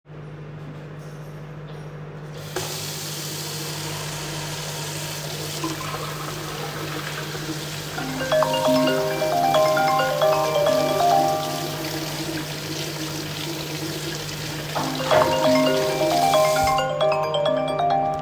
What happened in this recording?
As my microwave is on, IO started doing dishes and my alarm goes off.